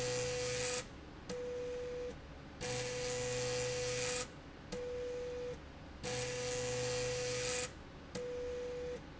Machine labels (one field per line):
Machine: slide rail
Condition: abnormal